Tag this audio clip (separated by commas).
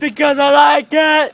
Yell, Male speech, Human voice, Shout, Speech